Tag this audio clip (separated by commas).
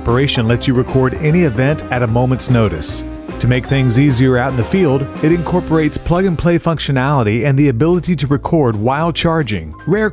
Speech, Music